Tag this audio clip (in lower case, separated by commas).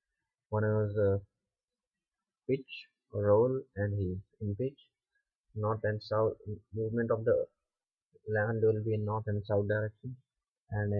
speech